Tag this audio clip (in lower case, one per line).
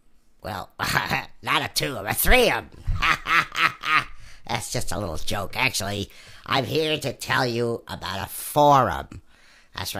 speech